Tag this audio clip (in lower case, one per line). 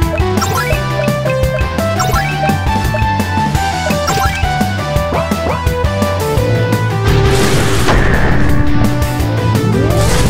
music